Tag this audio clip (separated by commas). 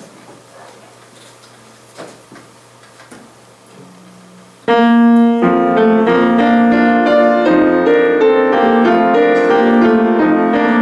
Piano, Musical instrument, Music